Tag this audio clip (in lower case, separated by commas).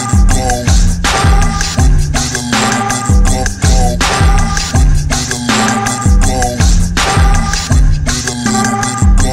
music, sampler